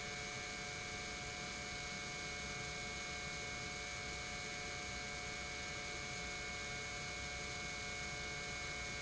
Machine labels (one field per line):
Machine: pump